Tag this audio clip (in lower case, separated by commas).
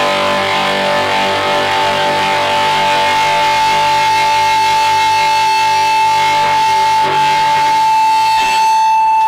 bass guitar, guitar, strum, music, musical instrument, plucked string instrument